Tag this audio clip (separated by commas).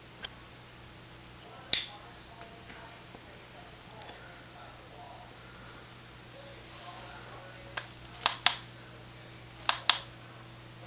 Speech